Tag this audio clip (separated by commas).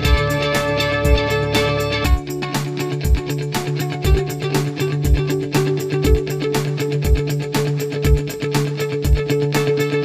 Music